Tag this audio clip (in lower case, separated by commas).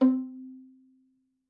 music, musical instrument, bowed string instrument